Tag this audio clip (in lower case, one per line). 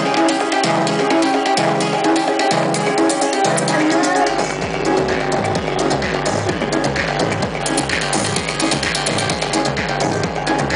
music